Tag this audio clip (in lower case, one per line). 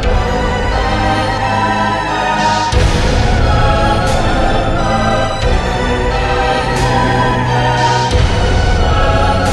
background music
music